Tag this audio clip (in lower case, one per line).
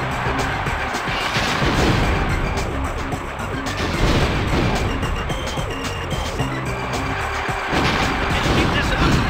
music
speech